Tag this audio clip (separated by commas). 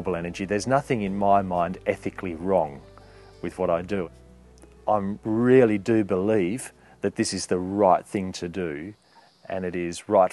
Music, Speech